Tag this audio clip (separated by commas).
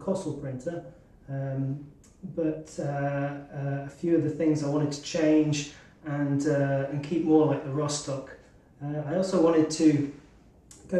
Speech